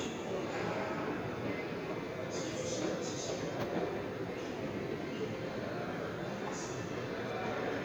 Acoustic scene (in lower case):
subway station